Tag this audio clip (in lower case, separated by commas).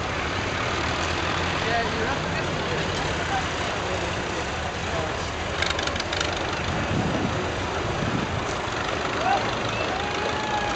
speech